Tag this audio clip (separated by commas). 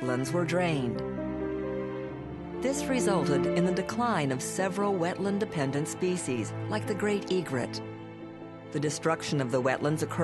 Speech, Music